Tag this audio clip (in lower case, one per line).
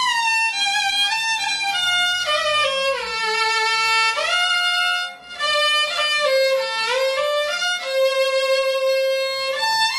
music
musical instrument
violin